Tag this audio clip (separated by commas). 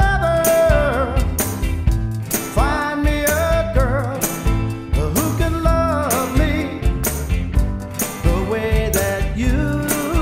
Music